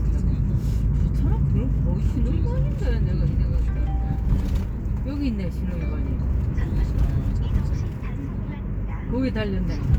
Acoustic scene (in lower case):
car